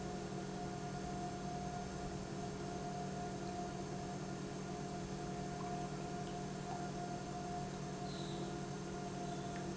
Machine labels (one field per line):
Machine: pump